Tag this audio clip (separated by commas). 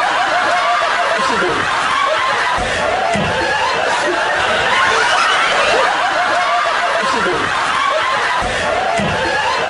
Snicker, people sniggering, Speech